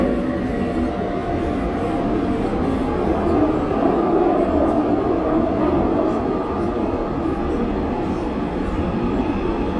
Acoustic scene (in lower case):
subway train